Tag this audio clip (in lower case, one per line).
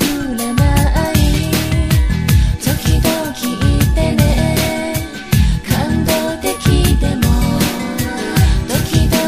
music
music of asia